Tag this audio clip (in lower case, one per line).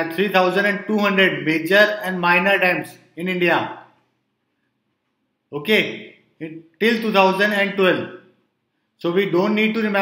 speech